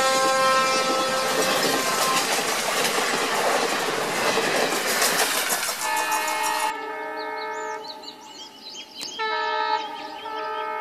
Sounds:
train horning

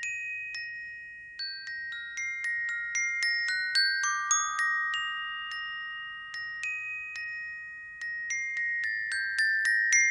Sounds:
playing glockenspiel

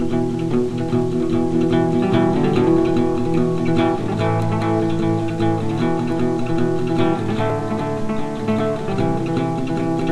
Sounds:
playing acoustic guitar

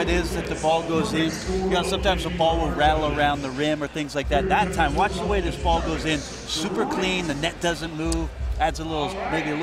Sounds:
Speech

